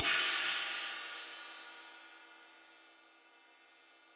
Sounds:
Hi-hat, Cymbal, Music, Musical instrument, Percussion

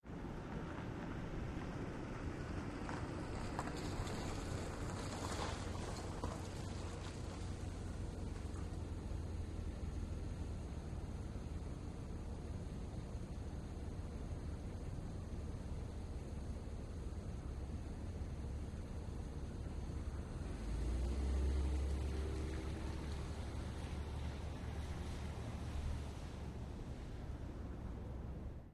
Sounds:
Car, Motor vehicle (road), Idling, Engine, Car passing by, Accelerating, Vehicle

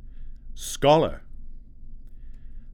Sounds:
Speech, Human voice, man speaking

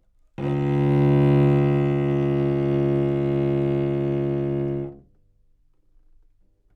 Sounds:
Musical instrument, Music, Bowed string instrument

